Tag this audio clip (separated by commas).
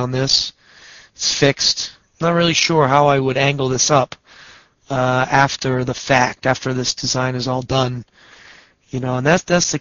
Speech